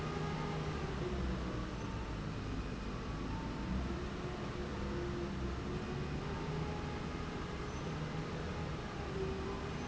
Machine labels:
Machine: slide rail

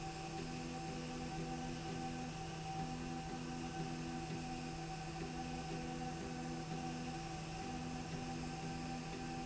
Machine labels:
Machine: slide rail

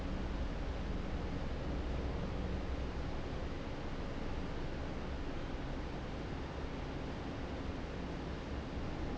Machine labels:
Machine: fan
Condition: normal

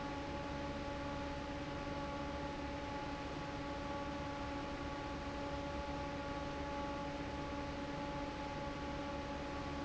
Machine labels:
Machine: fan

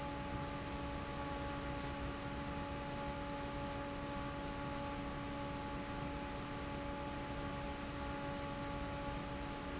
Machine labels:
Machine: fan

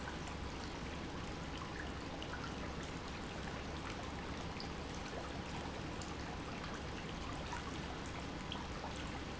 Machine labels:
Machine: pump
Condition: normal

